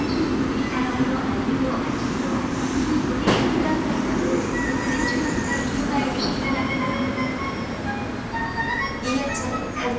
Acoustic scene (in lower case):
subway station